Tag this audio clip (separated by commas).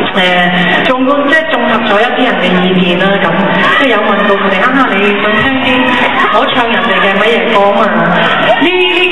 Speech